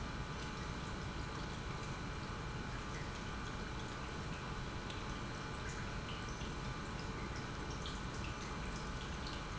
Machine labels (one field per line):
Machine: pump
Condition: normal